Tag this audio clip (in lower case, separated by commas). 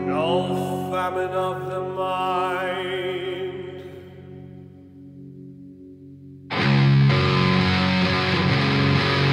heavy metal, rock music, music